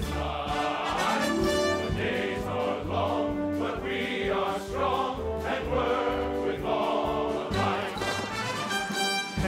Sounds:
Music, Speech

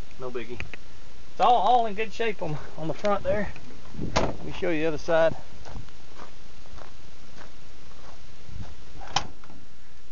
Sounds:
Speech, Vehicle

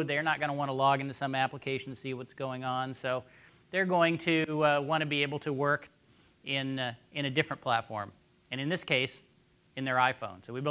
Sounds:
Speech

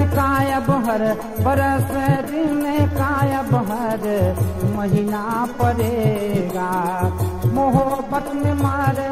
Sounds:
Middle Eastern music, Singing, Music

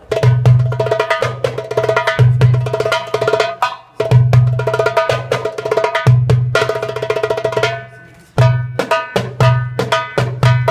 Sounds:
Music, Wood block

